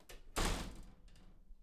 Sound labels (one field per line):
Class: door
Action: closing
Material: wooden